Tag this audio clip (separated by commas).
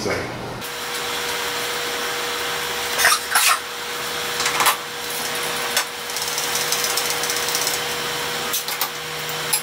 Tools, Speech